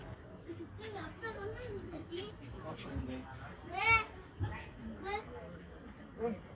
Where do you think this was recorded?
in a park